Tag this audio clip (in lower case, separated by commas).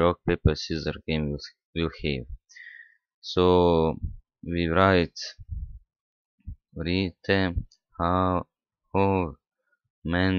speech